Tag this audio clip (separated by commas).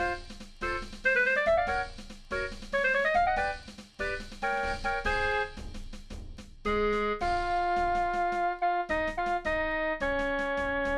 Classical music, Music